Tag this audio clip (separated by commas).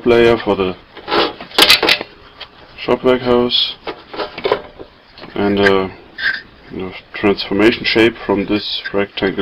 Speech